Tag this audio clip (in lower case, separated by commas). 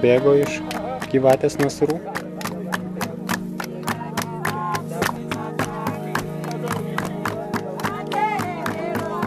speech, inside a public space, music